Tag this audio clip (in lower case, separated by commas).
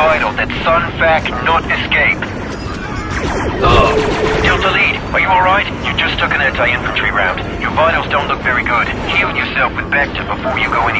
speech